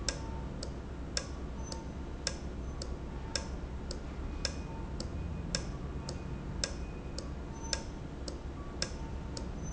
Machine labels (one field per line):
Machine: valve